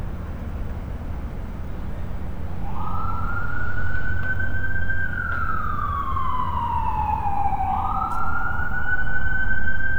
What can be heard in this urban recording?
siren